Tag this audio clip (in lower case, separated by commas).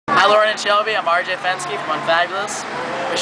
speech